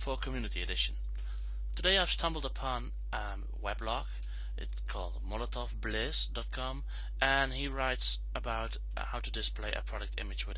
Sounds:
Speech

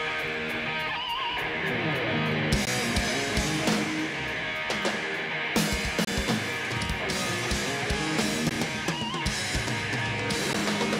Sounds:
Music

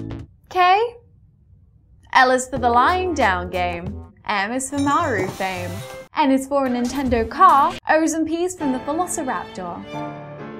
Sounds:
Music, Speech

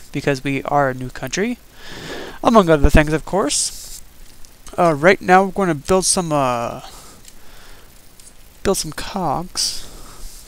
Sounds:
Speech

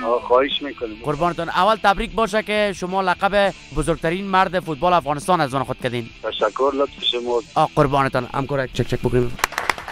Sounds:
Music, Speech

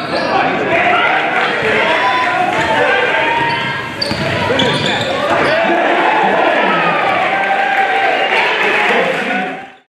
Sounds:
Speech

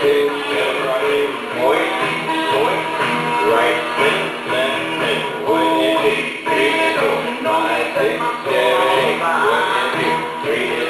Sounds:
Music, Speech

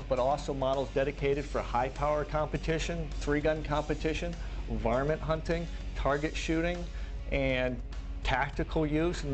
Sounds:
Speech, Music

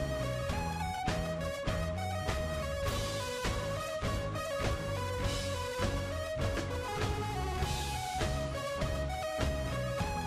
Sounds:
Music

